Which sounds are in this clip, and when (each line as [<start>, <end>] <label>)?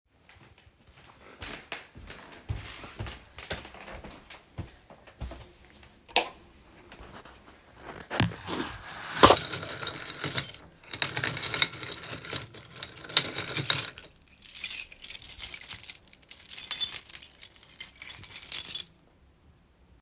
[1.24, 6.02] footsteps
[6.04, 6.89] light switch
[9.34, 19.55] keys